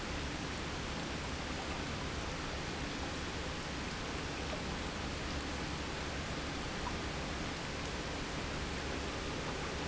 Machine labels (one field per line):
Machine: pump